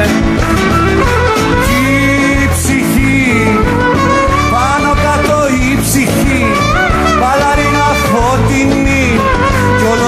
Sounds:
Folk music, Singing, Clarinet, Music

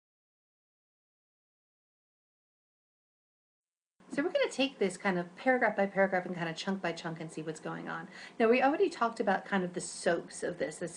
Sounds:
Female speech, Speech, monologue

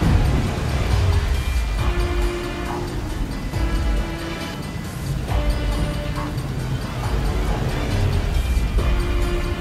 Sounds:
Music

